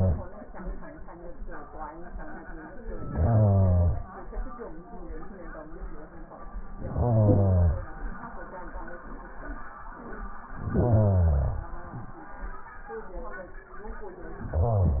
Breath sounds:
2.73-4.12 s: inhalation
6.67-7.95 s: inhalation
10.57-11.88 s: inhalation
14.40-15.00 s: inhalation

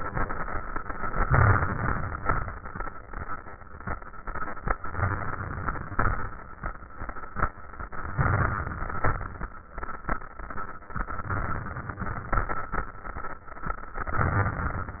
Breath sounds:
1.26-2.31 s: inhalation
1.28-2.32 s: crackles
2.36-3.14 s: crackles
2.36-3.15 s: exhalation
4.67-5.91 s: inhalation
5.89-6.69 s: exhalation
8.12-9.16 s: inhalation
9.15-9.95 s: exhalation
10.90-12.36 s: inhalation
12.38-13.36 s: exhalation
12.38-13.36 s: crackles
14.00-15.00 s: inhalation

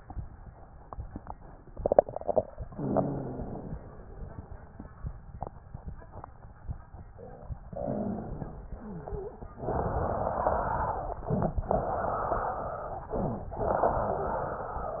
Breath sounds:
2.69-3.78 s: inhalation
2.69-3.78 s: wheeze
7.68-8.77 s: inhalation
7.68-8.77 s: wheeze
8.73-9.56 s: exhalation
8.80-9.45 s: wheeze

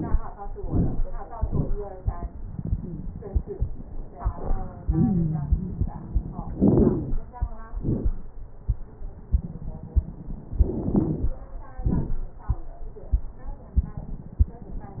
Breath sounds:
4.85-5.96 s: wheeze
4.85-6.44 s: inhalation
6.47-7.30 s: exhalation
6.47-7.30 s: crackles
9.29-10.49 s: inhalation
9.29-10.49 s: crackles
10.50-11.39 s: exhalation
10.50-11.39 s: crackles

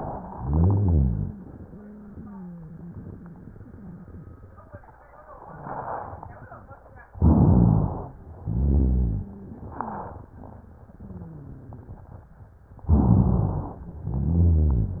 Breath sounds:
0.25-1.33 s: inhalation
0.25-1.33 s: rhonchi
7.12-8.18 s: inhalation
7.12-8.18 s: rhonchi
8.46-9.33 s: exhalation
8.46-9.33 s: rhonchi
10.93-12.00 s: wheeze
12.90-13.97 s: inhalation
12.90-13.97 s: rhonchi
14.02-15.00 s: inhalation
14.02-15.00 s: rhonchi

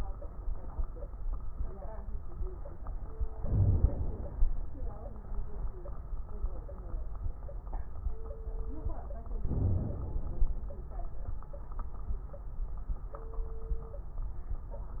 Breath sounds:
3.38-4.37 s: inhalation
3.38-4.37 s: crackles
9.51-10.50 s: inhalation
9.51-10.50 s: crackles

